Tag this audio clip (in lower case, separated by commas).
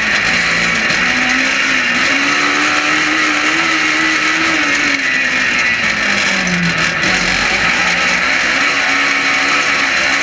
driving snowmobile